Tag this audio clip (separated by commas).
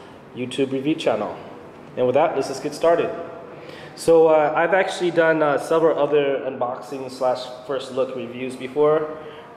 Speech